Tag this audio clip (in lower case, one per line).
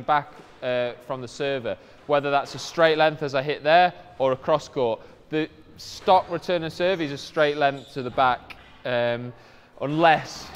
playing squash